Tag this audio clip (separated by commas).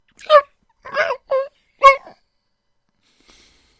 Animal, pets, Dog